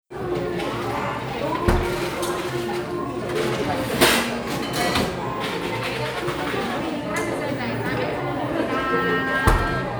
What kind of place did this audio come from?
crowded indoor space